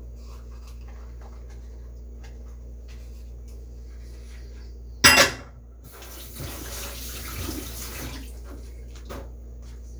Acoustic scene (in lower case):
kitchen